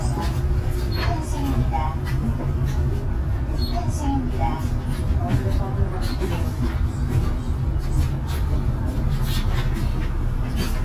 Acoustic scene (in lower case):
bus